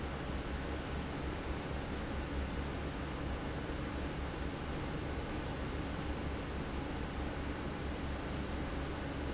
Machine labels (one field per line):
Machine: fan